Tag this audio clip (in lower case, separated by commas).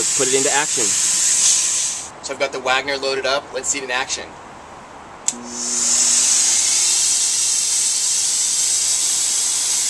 power tool